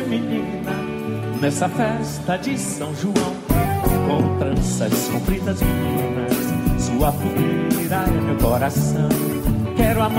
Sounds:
music

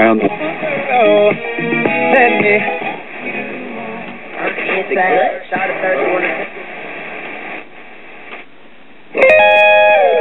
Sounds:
music
radio
speech

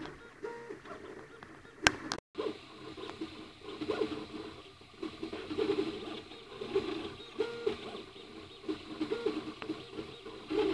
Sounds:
printer

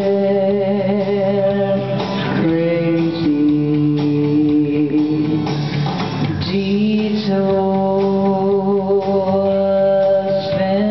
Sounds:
music
female singing

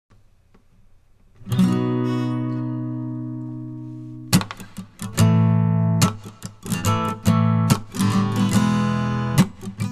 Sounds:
plucked string instrument
acoustic guitar
musical instrument
guitar

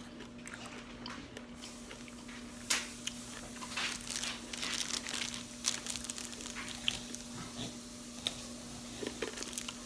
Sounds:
people eating apple

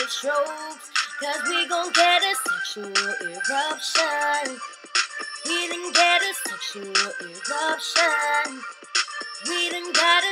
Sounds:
music

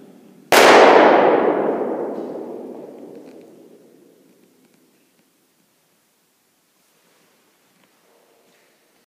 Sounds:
echo

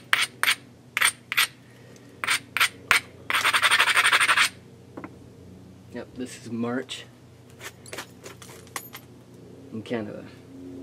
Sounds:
speech

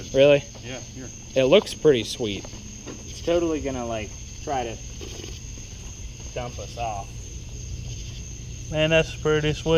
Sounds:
speech

